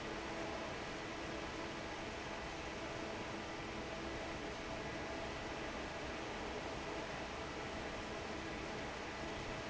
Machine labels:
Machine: fan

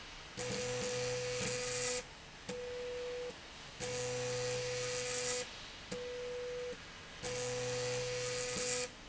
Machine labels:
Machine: slide rail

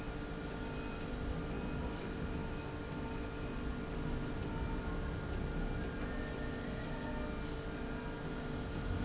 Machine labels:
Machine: slide rail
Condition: normal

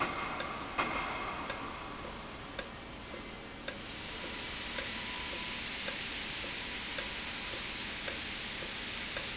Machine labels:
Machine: valve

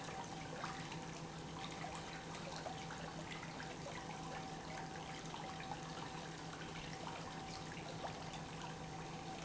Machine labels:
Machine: pump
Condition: normal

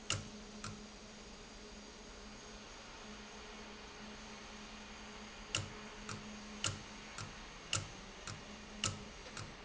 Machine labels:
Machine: valve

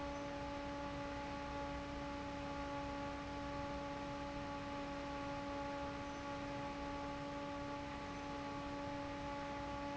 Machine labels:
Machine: fan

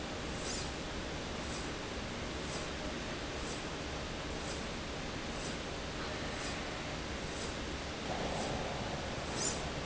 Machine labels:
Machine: slide rail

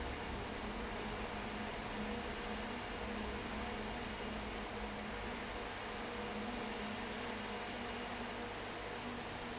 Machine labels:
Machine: fan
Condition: abnormal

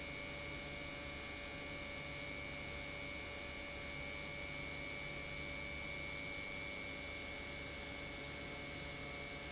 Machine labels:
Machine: pump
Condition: normal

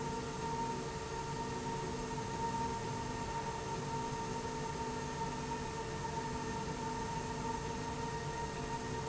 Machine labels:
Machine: slide rail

